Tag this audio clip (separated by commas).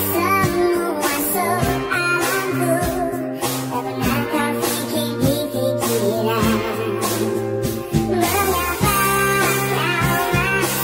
Music